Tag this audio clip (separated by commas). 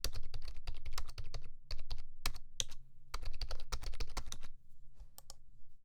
Typing, Domestic sounds, Computer keyboard